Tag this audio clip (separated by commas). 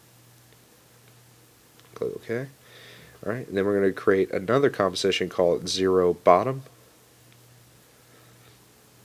Speech